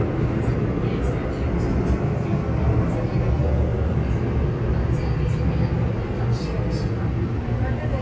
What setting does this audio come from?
subway train